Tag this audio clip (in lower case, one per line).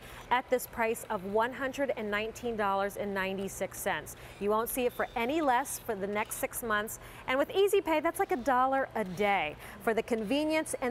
speech